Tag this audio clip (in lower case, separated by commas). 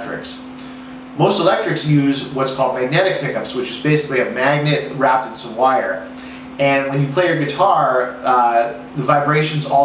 speech